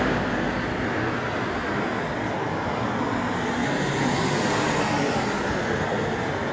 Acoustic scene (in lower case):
street